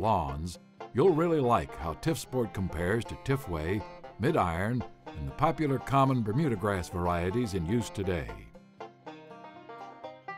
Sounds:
music, speech

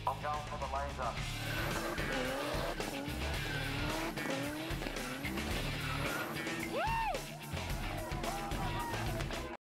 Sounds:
speech, vehicle, car

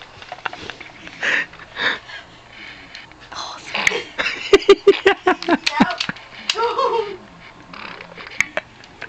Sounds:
fart, speech

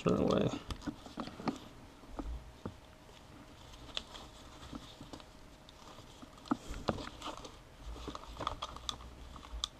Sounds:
speech

